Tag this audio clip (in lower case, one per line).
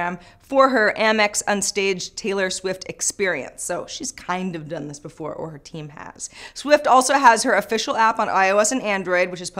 inside a small room
speech